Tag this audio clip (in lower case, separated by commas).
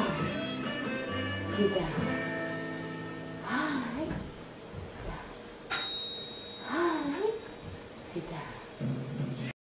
speech, music